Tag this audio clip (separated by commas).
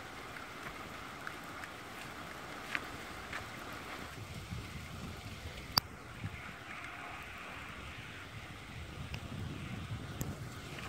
Fire